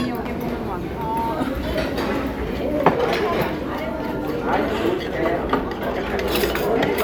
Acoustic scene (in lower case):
crowded indoor space